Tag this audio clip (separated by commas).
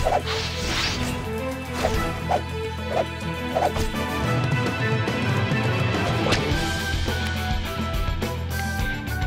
Music